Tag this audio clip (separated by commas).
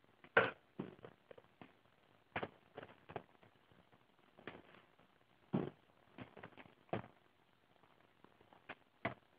Wood